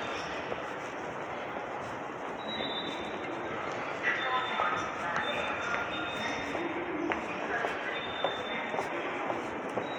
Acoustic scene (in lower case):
subway station